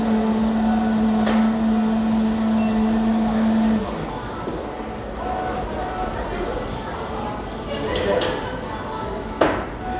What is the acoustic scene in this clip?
cafe